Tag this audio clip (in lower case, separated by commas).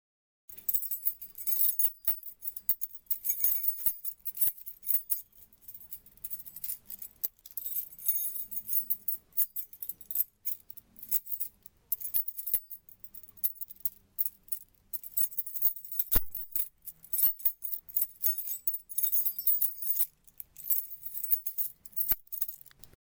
keys jangling, home sounds